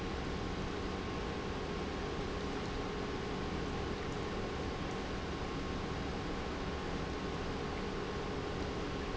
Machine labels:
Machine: pump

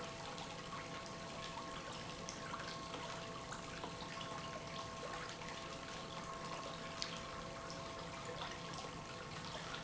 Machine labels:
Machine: pump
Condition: normal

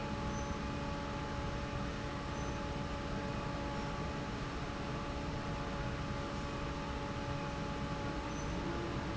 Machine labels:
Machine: fan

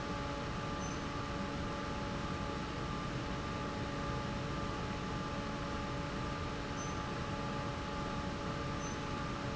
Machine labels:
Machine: fan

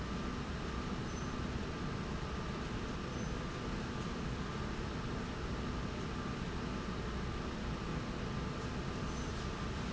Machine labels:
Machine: slide rail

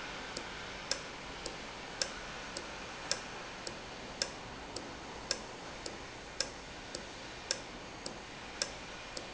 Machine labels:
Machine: valve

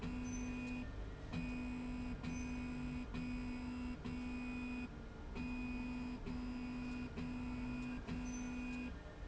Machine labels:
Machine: slide rail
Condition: normal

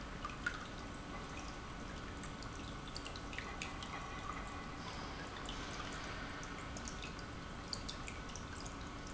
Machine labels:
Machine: pump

